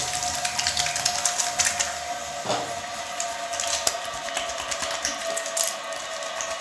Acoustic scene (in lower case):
restroom